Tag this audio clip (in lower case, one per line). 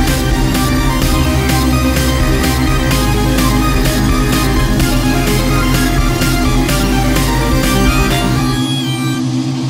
music